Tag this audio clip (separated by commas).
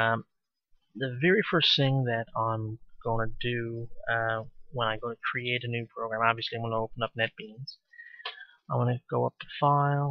Speech